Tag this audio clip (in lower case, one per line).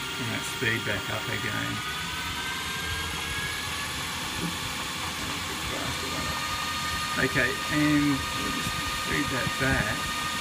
power tool
speech